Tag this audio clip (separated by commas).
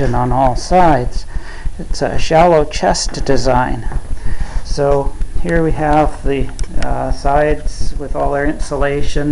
Speech